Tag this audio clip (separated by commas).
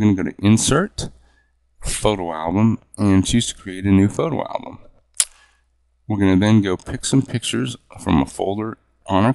Speech